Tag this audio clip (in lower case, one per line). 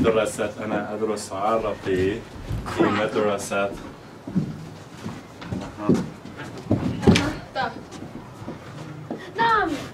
speech
writing